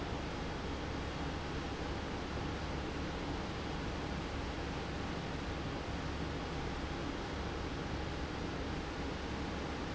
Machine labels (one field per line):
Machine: pump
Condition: abnormal